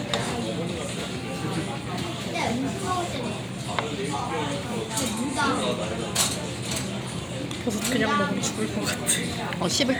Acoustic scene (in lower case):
crowded indoor space